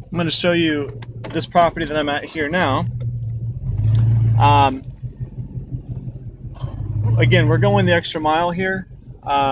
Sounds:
vehicle, speech, outside, rural or natural

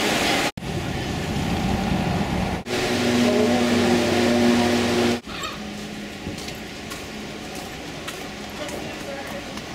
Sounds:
speech

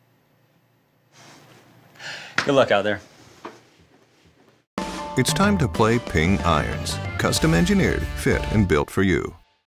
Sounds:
music, speech

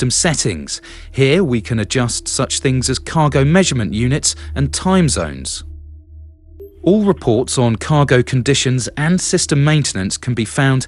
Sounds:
speech

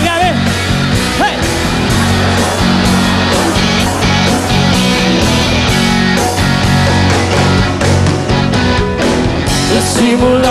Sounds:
music, singing

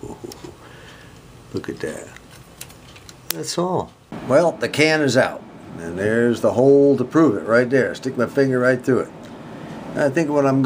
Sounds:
speech

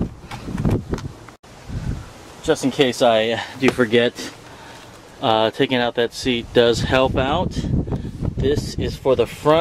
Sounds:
speech, outside, urban or man-made

